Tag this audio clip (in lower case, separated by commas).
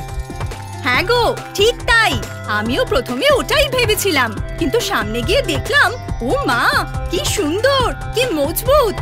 speech, music